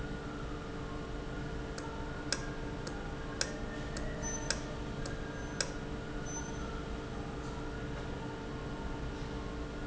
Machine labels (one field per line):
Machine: valve